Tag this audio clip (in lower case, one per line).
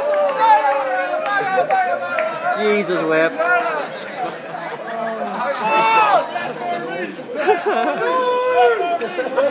speech